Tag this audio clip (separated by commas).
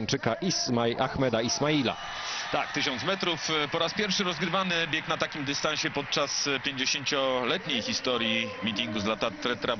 Speech, outside, urban or man-made